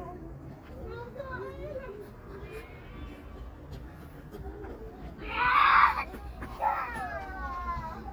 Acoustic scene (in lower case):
park